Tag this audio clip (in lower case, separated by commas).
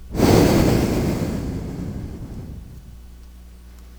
breathing, respiratory sounds